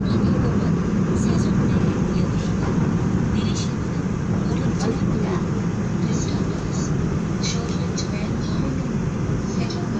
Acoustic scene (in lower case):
subway train